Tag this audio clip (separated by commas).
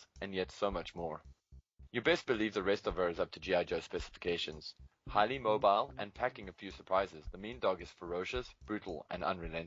Speech